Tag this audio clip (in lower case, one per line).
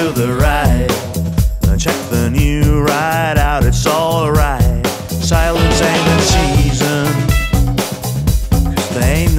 music
happy music